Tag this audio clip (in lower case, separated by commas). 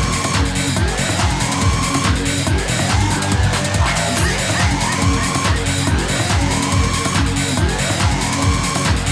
music